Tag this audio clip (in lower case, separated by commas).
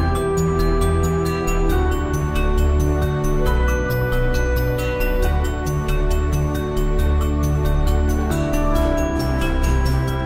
background music, music